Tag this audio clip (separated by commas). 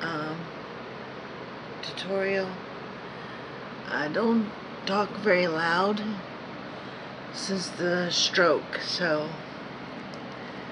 Speech